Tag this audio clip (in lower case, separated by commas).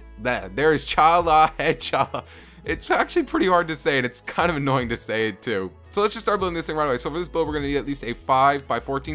speech, music